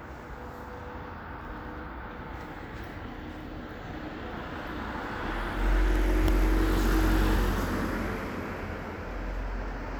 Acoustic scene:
residential area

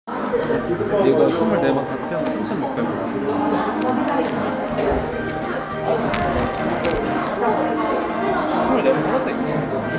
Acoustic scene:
crowded indoor space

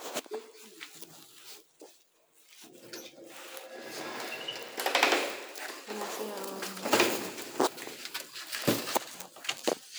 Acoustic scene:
elevator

